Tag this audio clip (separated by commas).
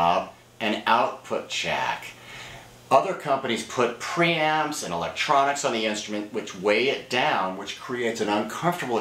Speech